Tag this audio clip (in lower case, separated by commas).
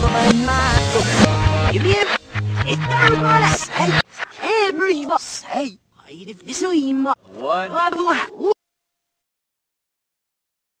speech, musical instrument, music